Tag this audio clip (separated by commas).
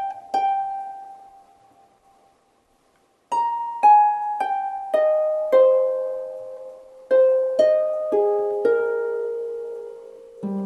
playing harp